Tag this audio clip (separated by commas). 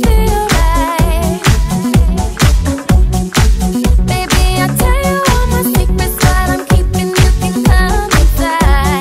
Singing, Dance music